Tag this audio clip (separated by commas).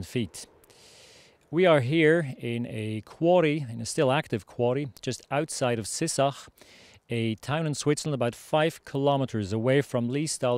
Speech